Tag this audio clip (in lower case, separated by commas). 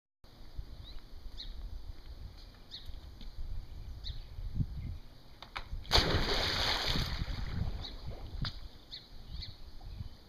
water